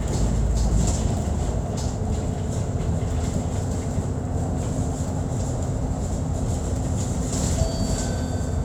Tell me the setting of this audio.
bus